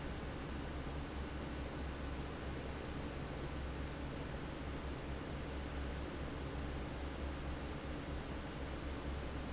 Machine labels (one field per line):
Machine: fan